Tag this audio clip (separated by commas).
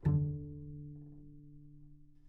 Music, Musical instrument, Bowed string instrument